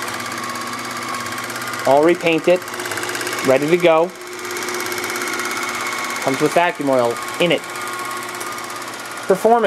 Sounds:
Speech

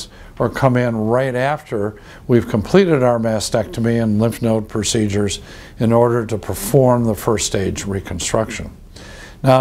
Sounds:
Speech

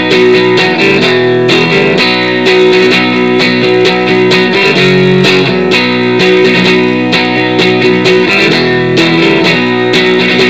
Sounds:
Guitar, Plucked string instrument, Strum, Musical instrument, Music

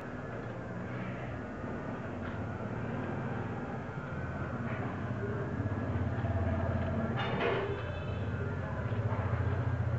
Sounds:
canoe

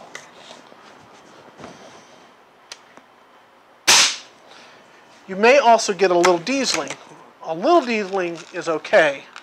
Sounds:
Cap gun, Gunshot

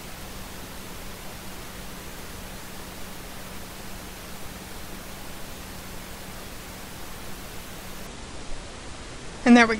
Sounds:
Speech, inside a small room

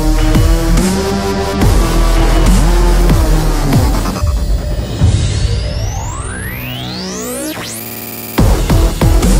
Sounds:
Trance music, Music

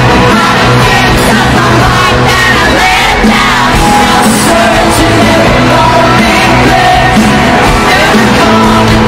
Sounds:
Singing, Pop music, Music, inside a public space

